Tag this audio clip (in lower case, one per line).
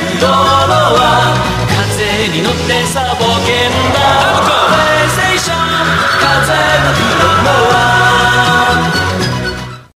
music